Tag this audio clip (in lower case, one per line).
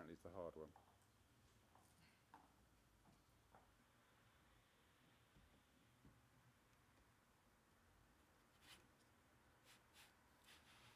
inside a small room
speech
silence